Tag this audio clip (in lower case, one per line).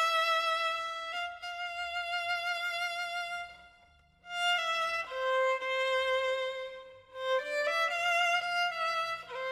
music
violin